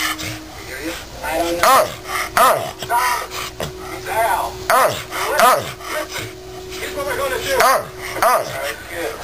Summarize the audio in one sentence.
A man speaks and sound of an animal